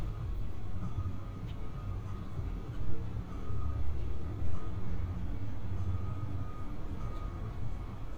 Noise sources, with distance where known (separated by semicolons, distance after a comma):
reverse beeper, far